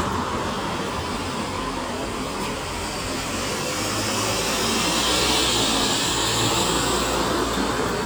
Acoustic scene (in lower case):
street